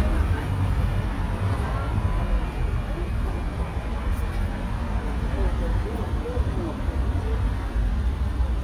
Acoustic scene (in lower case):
street